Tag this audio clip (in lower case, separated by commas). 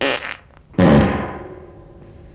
fart